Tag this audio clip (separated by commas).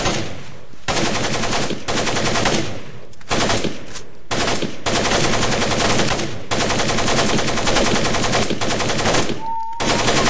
gunfire, Machine gun